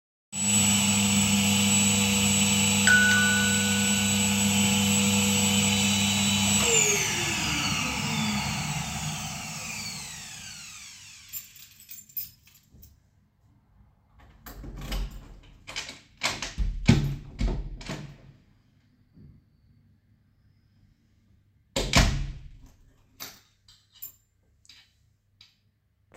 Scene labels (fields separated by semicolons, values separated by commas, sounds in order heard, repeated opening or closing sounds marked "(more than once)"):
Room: hallway; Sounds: vacuum cleaner, bell ringing, keys, door (more than once)